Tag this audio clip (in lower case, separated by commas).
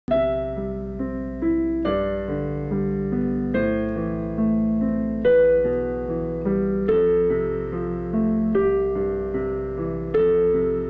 music, keyboard (musical)